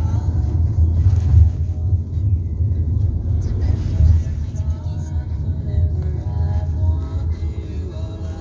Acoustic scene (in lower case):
car